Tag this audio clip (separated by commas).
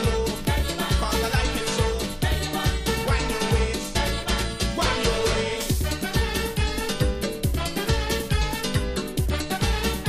Music